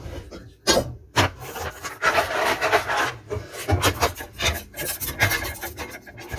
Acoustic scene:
kitchen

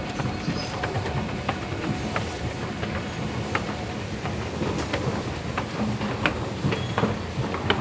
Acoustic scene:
subway station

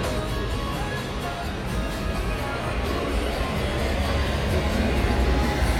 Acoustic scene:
street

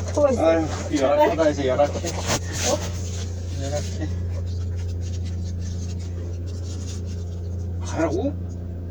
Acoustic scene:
car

